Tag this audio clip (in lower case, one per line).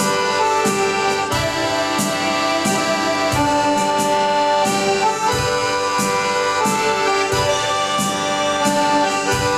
playing accordion